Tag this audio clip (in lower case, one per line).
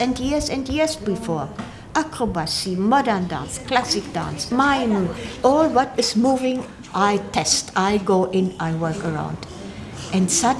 speech